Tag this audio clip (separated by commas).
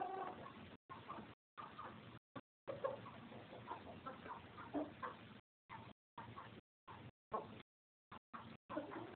Bird, Animal